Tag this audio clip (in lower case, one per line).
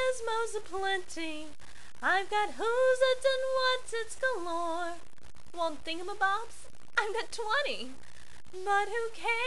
female singing